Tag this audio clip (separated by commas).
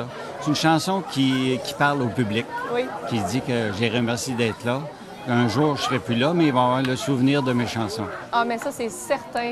Speech